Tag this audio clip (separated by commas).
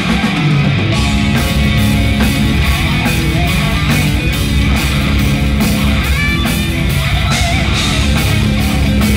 Music, Heavy metal